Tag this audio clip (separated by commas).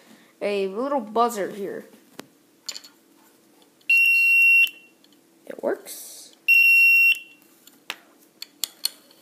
Speech